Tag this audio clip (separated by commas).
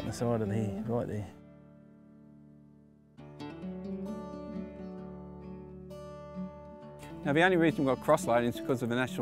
Speech, Music